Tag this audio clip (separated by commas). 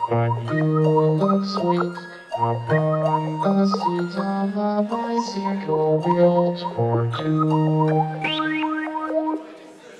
Music